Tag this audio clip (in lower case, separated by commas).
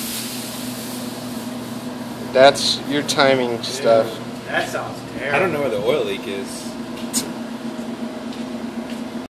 speech, heavy engine (low frequency)